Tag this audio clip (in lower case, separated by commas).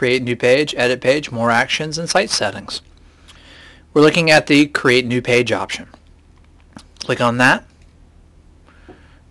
speech